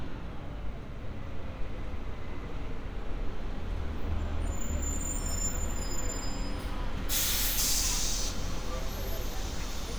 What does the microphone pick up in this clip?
large-sounding engine